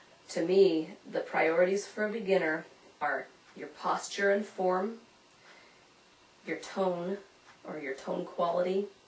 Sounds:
Speech

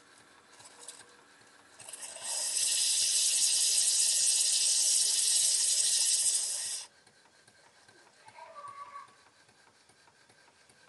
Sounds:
Steam, Hiss

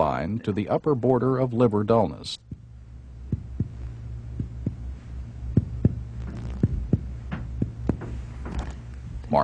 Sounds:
Speech

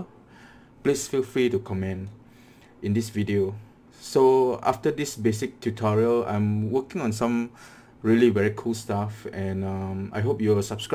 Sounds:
Speech

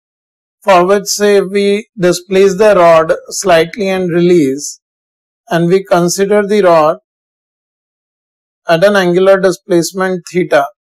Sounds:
Speech

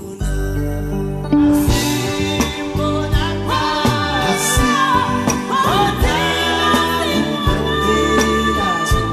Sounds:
Music

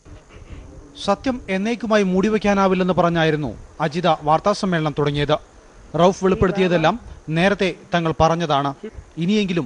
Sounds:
Speech

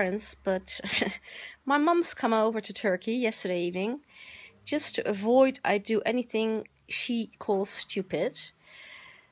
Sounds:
Speech

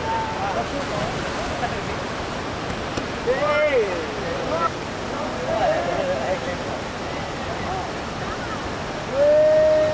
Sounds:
surf, Ocean

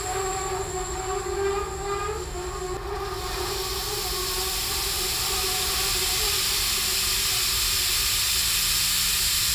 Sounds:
outside, urban or man-made

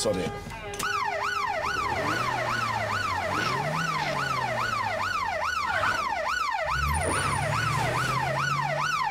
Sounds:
Vehicle, Speech, Car, Emergency vehicle

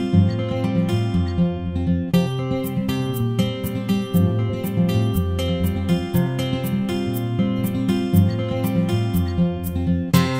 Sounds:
Music

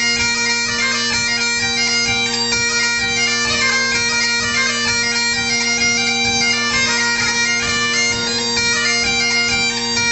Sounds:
playing bagpipes, Music, Bagpipes

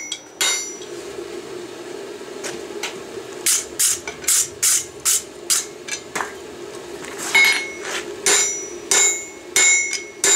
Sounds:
forging swords

